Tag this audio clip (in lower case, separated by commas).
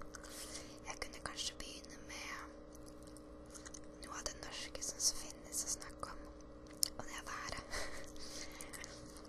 whispering, speech, mastication